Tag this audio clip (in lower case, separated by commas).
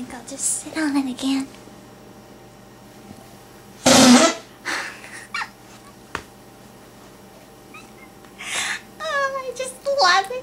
inside a small room, speech, laughter